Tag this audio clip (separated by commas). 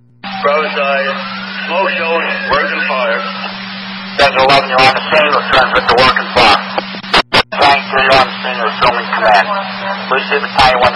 Speech